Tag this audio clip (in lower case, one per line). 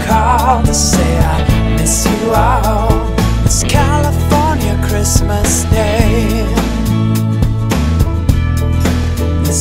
christmas music
music